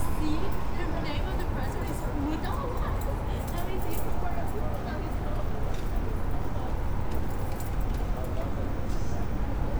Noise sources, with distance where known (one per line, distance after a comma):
person or small group talking, near